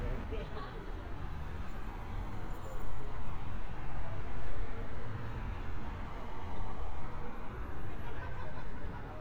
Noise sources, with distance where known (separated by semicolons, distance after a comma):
person or small group talking, near